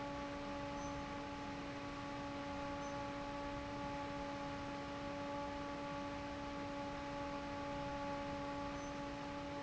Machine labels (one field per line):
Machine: fan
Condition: normal